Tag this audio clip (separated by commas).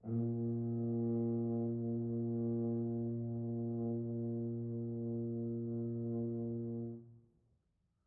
Brass instrument, Musical instrument, Music